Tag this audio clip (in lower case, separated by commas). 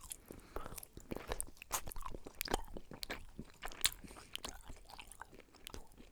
mastication